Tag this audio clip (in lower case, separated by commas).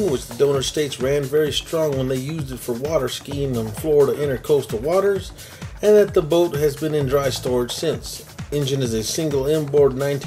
music, speech